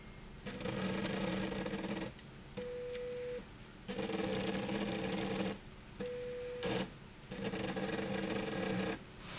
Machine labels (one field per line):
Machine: slide rail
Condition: abnormal